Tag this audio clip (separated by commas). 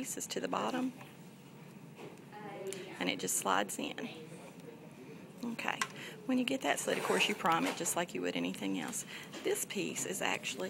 Speech